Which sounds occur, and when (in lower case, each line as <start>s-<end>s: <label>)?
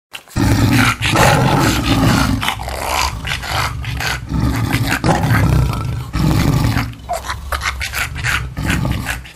0.1s-0.3s: animal
0.1s-9.3s: background noise
0.3s-4.2s: roar
4.3s-6.8s: roar
7.0s-7.2s: bark
7.1s-7.3s: animal
7.5s-8.4s: animal
8.6s-9.3s: animal
8.6s-9.2s: roar
9.3s-9.3s: roar